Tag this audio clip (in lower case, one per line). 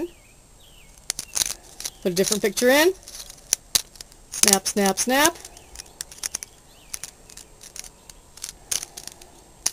speech